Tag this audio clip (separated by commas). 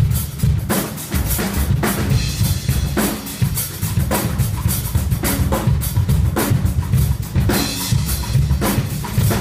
Drum, Music, Drum kit, Bass drum, Musical instrument